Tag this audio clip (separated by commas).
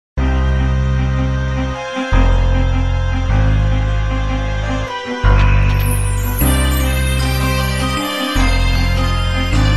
Music, Theme music